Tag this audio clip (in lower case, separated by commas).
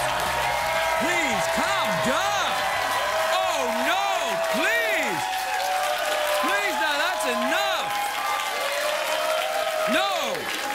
monologue, speech